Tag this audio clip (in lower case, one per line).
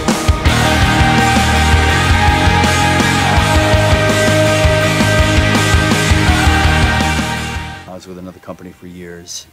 music
percussion
speech